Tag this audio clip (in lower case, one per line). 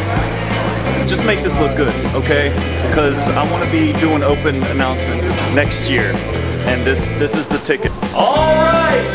speech
music